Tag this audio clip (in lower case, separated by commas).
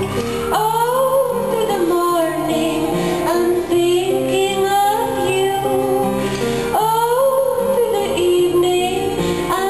happy music, music